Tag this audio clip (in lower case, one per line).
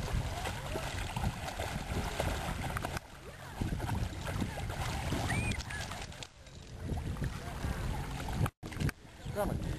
speech